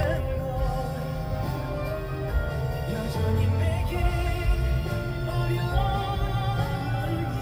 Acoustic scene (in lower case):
car